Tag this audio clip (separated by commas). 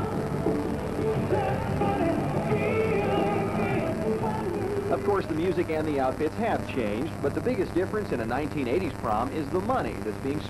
Music, Speech